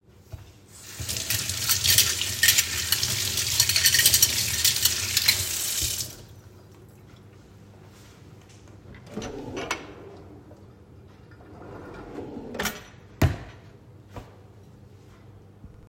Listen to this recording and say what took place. I washed the forks, opened the cutlery drawer, put the forks there, and closed the drawer.